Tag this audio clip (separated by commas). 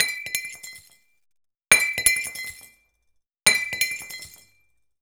Glass